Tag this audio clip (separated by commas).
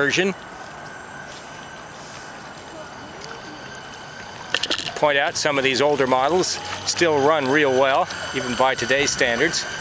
Speech, speedboat